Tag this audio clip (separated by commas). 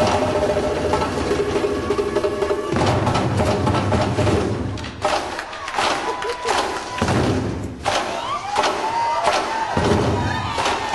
Musical instrument, Drum, Music